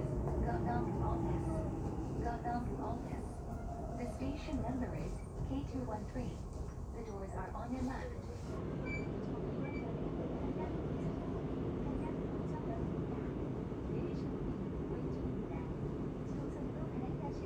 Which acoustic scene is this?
subway train